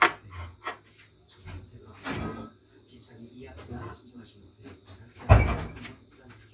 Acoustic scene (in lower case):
kitchen